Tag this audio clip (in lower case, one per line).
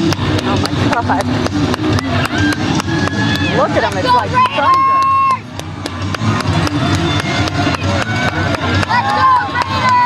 speech
music
outside, urban or man-made